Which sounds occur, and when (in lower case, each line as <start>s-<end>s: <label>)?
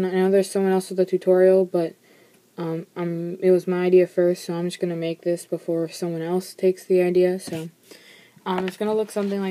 0.0s-9.5s: background noise
0.0s-1.9s: male speech
2.0s-2.4s: breathing
2.5s-2.8s: male speech
2.9s-7.6s: male speech
7.8s-8.3s: breathing
8.4s-9.5s: male speech
8.5s-8.7s: tap
9.0s-9.5s: surface contact